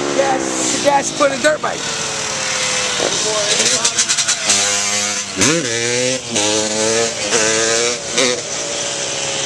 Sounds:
speech
motorcycle
vehicle
outside, rural or natural

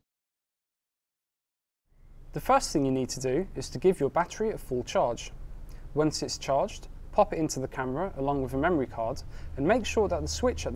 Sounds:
speech

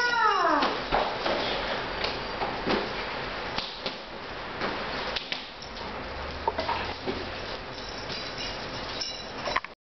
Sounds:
flap

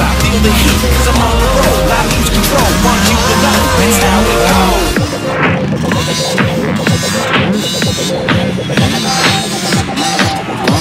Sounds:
music
motorcycle
vehicle
outside, urban or man-made

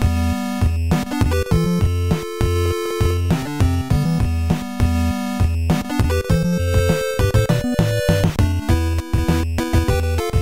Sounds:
music

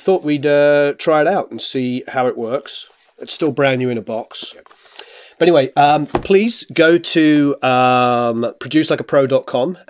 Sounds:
speech

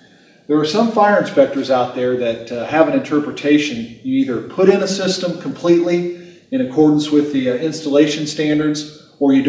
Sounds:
speech

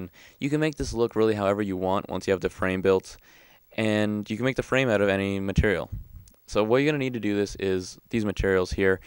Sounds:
speech

